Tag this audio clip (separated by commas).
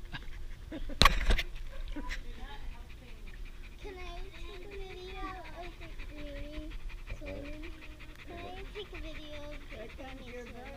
Dog, Speech, Animal, Domestic animals